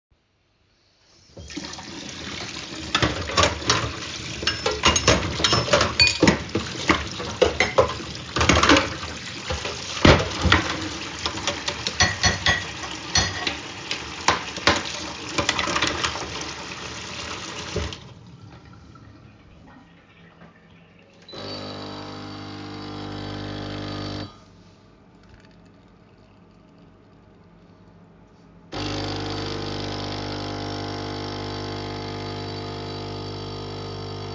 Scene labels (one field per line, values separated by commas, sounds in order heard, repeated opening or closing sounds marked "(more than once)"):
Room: kitchen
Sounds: running water, cutlery and dishes, coffee machine